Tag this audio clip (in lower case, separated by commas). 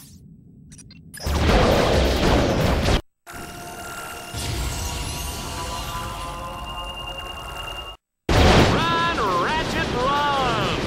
music, speech